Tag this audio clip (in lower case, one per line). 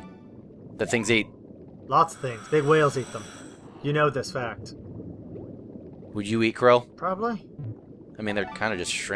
speech